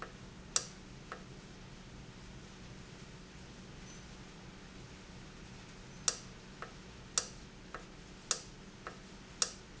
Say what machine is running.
valve